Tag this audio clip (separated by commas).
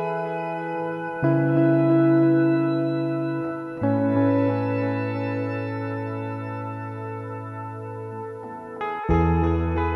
Ambient music, New-age music, Music